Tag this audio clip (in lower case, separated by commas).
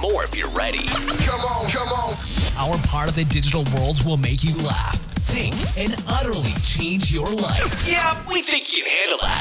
music, speech